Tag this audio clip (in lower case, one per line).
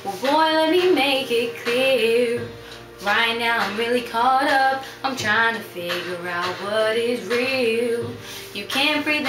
female singing
music